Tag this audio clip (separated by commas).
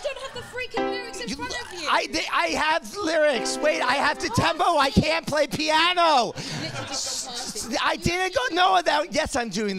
Music, Speech